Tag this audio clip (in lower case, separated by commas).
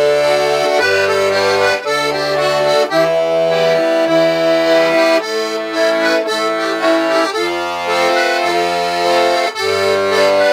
playing accordion, music, accordion